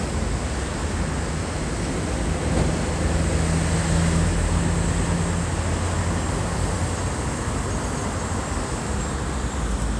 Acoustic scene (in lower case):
street